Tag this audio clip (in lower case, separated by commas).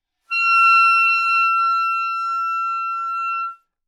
musical instrument, music, woodwind instrument